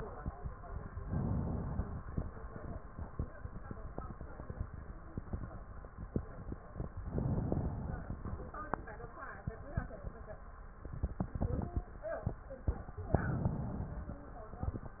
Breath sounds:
1.07-2.14 s: inhalation
7.09-8.16 s: inhalation
13.07-14.14 s: inhalation

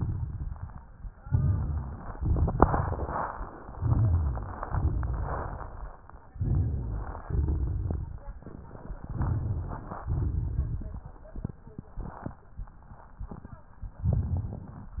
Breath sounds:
1.19-2.14 s: crackles
1.21-2.14 s: inhalation
2.16-3.29 s: exhalation
2.16-3.29 s: crackles
3.76-4.66 s: inhalation
3.76-4.66 s: crackles
4.67-5.97 s: exhalation
4.67-5.97 s: crackles
6.32-7.28 s: inhalation
7.27-8.24 s: exhalation
7.27-8.24 s: crackles
8.39-10.04 s: inhalation
8.39-10.04 s: crackles
10.05-12.39 s: exhalation
10.05-12.39 s: crackles

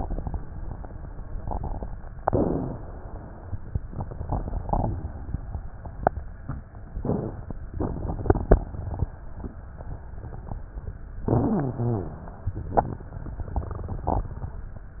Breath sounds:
2.23-3.82 s: inhalation
7.05-7.57 s: inhalation
7.77-9.04 s: inhalation
11.22-12.43 s: inhalation
11.23-12.15 s: rhonchi

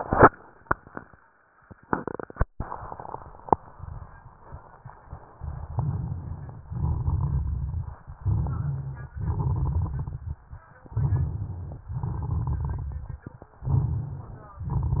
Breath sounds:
5.45-6.72 s: inhalation
5.45-6.72 s: crackles
6.74-8.01 s: exhalation
6.74-8.01 s: crackles
8.25-9.15 s: inhalation
8.25-9.15 s: crackles
9.18-10.46 s: exhalation
9.18-10.46 s: crackles
10.89-11.88 s: inhalation
10.89-11.88 s: crackles
11.92-13.19 s: exhalation
11.92-13.19 s: crackles
13.64-14.63 s: inhalation
13.64-14.63 s: crackles

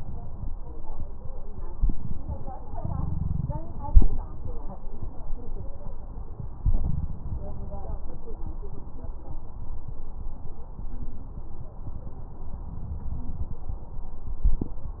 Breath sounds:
2.69-3.57 s: inhalation
6.60-7.47 s: inhalation

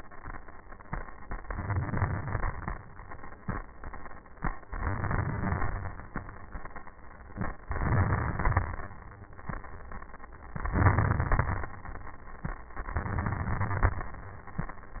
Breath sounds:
1.50-2.76 s: inhalation
1.50-2.76 s: crackles
4.71-5.98 s: inhalation
4.71-5.98 s: crackles
7.69-8.96 s: inhalation
7.69-8.96 s: crackles
10.61-11.75 s: inhalation
10.61-11.75 s: crackles
12.88-14.02 s: inhalation
12.88-14.02 s: crackles

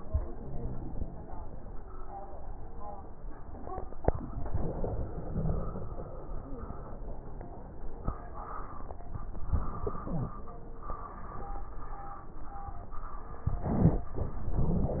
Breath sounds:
13.44-14.10 s: inhalation
13.44-14.10 s: crackles
14.18-15.00 s: exhalation
14.18-15.00 s: crackles

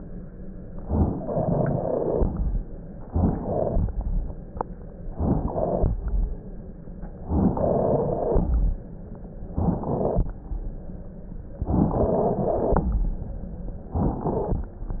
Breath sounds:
0.81-2.40 s: inhalation
0.81-2.40 s: crackles
2.96-3.96 s: inhalation
2.96-3.96 s: crackles
5.08-6.08 s: inhalation
5.08-6.08 s: crackles
7.18-8.64 s: inhalation
7.18-8.64 s: crackles
9.50-10.43 s: inhalation
9.50-10.43 s: crackles
11.63-12.99 s: inhalation
11.63-12.99 s: crackles
13.87-14.72 s: inhalation

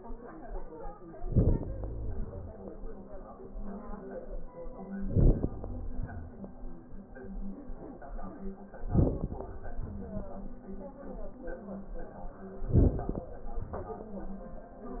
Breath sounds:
1.17-2.76 s: inhalation
1.17-2.76 s: crackles
4.85-6.44 s: inhalation
4.85-6.44 s: crackles
8.72-10.27 s: inhalation
8.72-10.27 s: crackles
12.57-14.09 s: inhalation
12.57-14.09 s: crackles

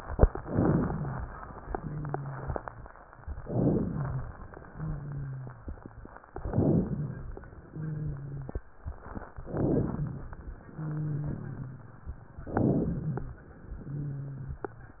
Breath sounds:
0.40-1.22 s: crackles
0.42-1.25 s: inhalation
1.75-2.85 s: wheeze
3.42-4.31 s: rhonchi
3.42-4.37 s: inhalation
4.74-5.84 s: wheeze
6.39-7.34 s: rhonchi
6.41-7.36 s: inhalation
7.65-8.75 s: wheeze
9.39-10.34 s: rhonchi
9.43-10.38 s: inhalation
10.72-11.82 s: wheeze
12.41-13.36 s: rhonchi
12.45-13.40 s: inhalation
13.78-14.74 s: wheeze

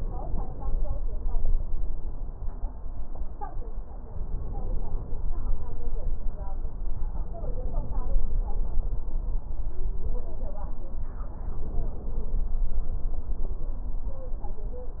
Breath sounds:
0.00-0.94 s: inhalation
4.10-5.33 s: inhalation
7.21-8.44 s: inhalation
11.34-12.56 s: inhalation

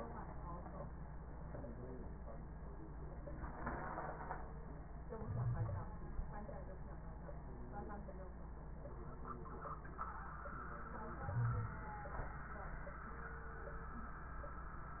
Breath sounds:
5.20-5.93 s: inhalation
5.20-5.93 s: wheeze
11.22-11.77 s: inhalation
11.22-11.77 s: wheeze

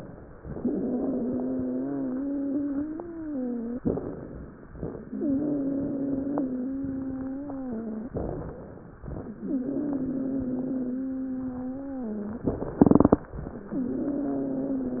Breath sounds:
0.51-3.78 s: exhalation
0.51-3.78 s: wheeze
3.81-4.78 s: inhalation
5.01-8.05 s: exhalation
5.01-8.05 s: wheeze
8.12-9.09 s: inhalation
9.41-12.45 s: exhalation
9.41-12.45 s: wheeze
12.81-13.71 s: inhalation
13.76-15.00 s: exhalation
13.76-15.00 s: wheeze

